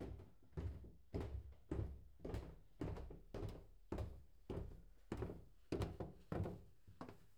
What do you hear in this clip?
footsteps on a wooden floor